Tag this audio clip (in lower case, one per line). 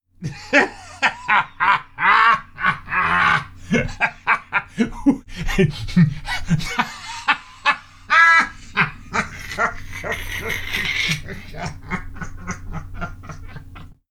laughter
human voice